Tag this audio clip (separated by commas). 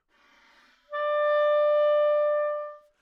Wind instrument, Musical instrument, Music